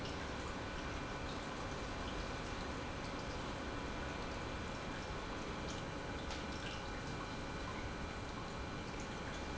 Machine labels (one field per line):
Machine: pump